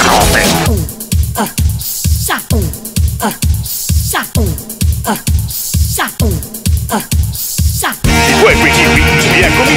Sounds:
exciting music, disco, music

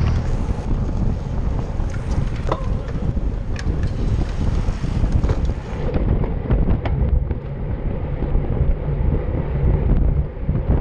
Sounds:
vehicle, bicycle, outside, urban or man-made

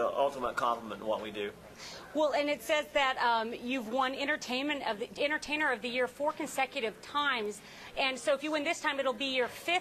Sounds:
speech

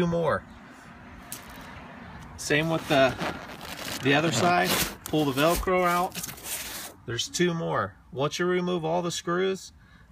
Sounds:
speech

